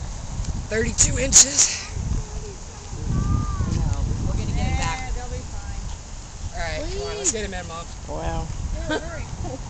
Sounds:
Child speech

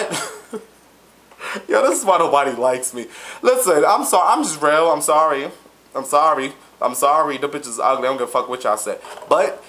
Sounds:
inside a small room, Speech

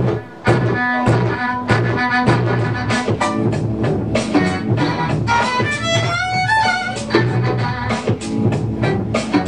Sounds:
Music, Musical instrument

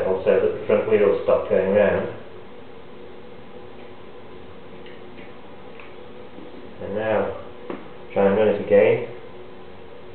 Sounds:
Speech

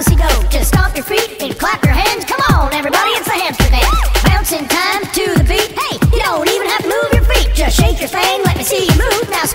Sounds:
Dance music, Music

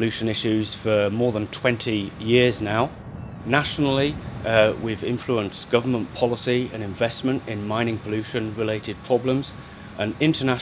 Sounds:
Speech

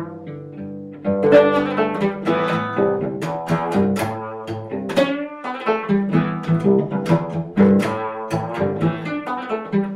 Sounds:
Music, Cello, Plucked string instrument, Musical instrument, Bowed string instrument, Mandolin

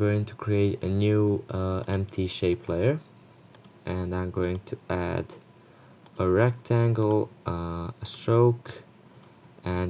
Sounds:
Speech

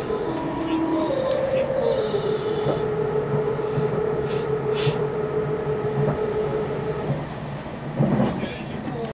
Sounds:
Speech, Train, Vehicle

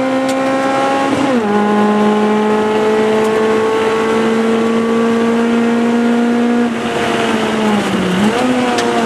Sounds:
Car passing by

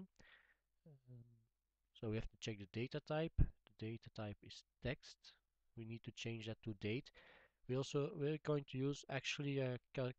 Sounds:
Speech

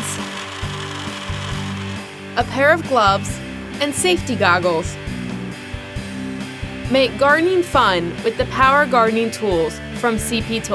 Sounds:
Music, Speech, Tools

